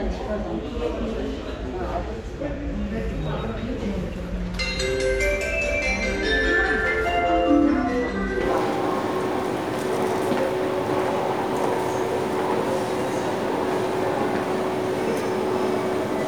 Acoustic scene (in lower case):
subway station